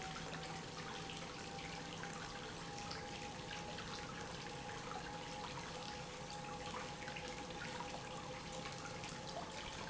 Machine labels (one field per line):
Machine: pump